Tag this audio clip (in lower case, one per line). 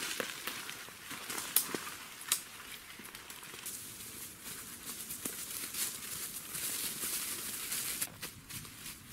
wind rustling leaves